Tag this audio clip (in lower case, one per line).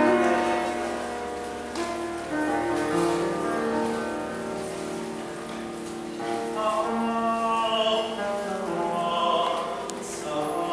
male singing
music